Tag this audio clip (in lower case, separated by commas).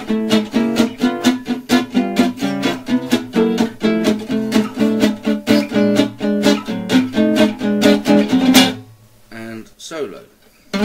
acoustic guitar, strum, guitar, plucked string instrument, music, musical instrument, speech